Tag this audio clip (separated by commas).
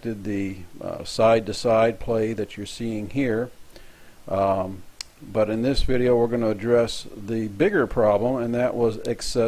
Speech